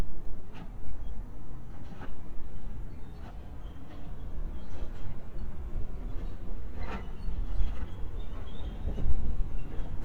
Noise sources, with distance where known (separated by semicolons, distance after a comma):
background noise